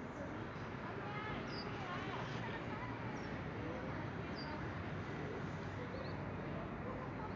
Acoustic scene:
residential area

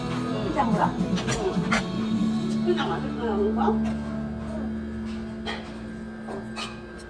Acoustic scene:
restaurant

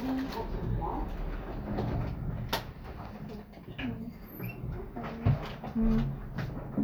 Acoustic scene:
elevator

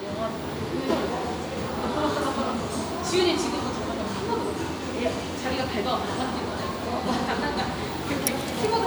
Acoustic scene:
cafe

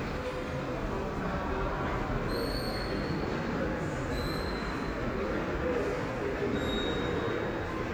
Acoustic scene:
subway station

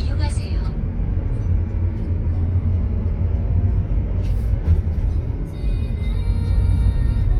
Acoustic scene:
car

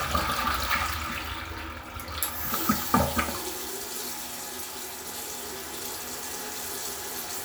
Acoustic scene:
restroom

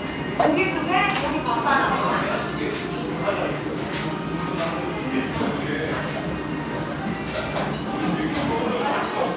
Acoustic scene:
restaurant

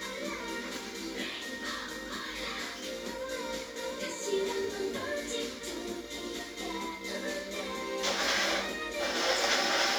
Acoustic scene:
cafe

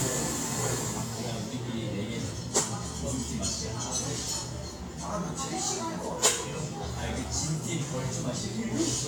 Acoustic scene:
cafe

